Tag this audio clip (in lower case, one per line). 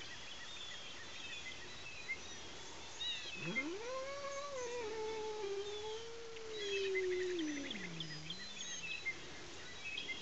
domestic animals
cat
animal